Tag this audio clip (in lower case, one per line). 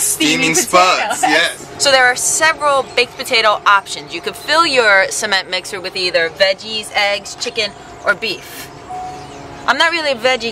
speech